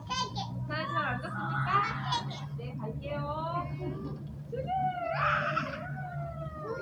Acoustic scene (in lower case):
residential area